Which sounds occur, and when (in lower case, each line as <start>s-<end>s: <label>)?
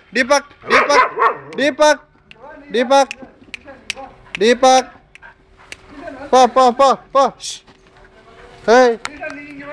0.0s-9.7s: wind
0.1s-0.4s: man speaking
0.1s-9.7s: conversation
0.5s-0.5s: tick
0.6s-1.4s: bark
0.6s-1.1s: man speaking
1.2s-1.8s: growling
1.2s-1.2s: tick
1.5s-1.5s: tick
1.5s-2.0s: man speaking
2.3s-2.3s: tick
2.4s-3.3s: man speaking
3.1s-3.1s: tick
3.5s-3.6s: tick
3.6s-4.1s: man speaking
3.9s-3.9s: tick
4.3s-5.0s: pant (dog)
4.3s-4.4s: tick
4.4s-4.9s: man speaking
5.1s-5.2s: tick
5.2s-5.3s: pant (dog)
5.6s-5.8s: pant (dog)
5.7s-5.8s: tick
5.9s-7.0s: man speaking
7.1s-7.6s: man speaking
7.6s-8.2s: pant (dog)
7.9s-9.7s: man speaking
9.0s-9.1s: tick
9.3s-9.3s: tick